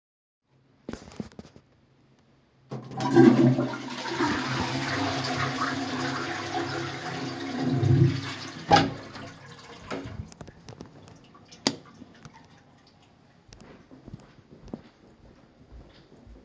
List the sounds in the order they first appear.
toilet flushing, door, light switch, footsteps